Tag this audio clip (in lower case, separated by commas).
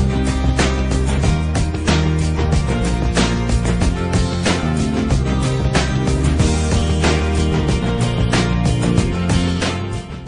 music